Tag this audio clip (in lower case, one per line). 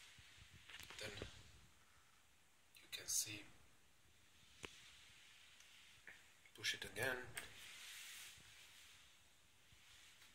inside a small room
speech